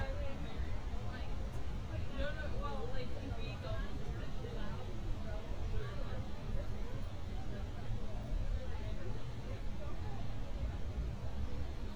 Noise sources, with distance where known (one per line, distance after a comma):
person or small group talking, near